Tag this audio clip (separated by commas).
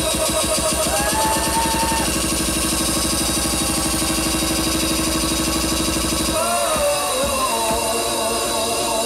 Music, House music, Funk